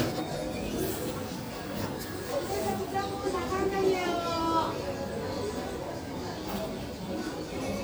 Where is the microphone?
in a crowded indoor space